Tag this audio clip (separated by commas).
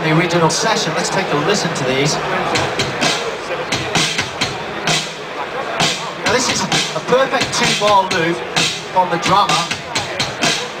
Speech, Music